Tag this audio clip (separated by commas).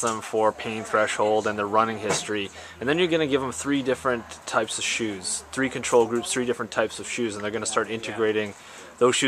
Speech, inside a large room or hall